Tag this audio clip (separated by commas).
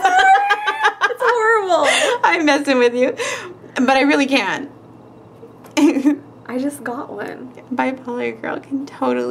inside a small room, Speech